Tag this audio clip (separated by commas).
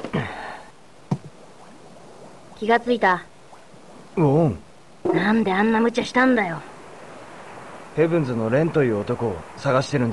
Vehicle, Speech, Water vehicle, sailing ship